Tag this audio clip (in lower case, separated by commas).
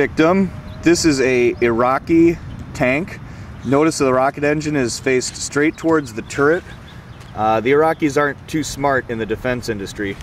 speech